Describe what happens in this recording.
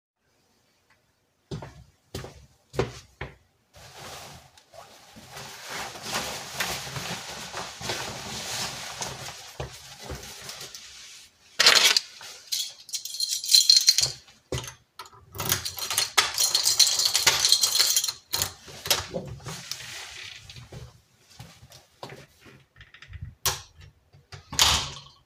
I walked to the door and took a jacket. I put it on and grabbed the keys. I inserted the key into the keyhole, opened the door, walked out of the room and closed the door.